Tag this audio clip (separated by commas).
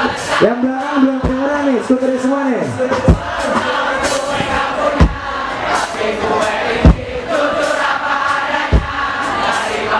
Speech, Music